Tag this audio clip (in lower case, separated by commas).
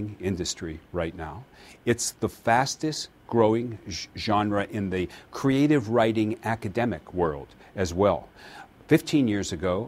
speech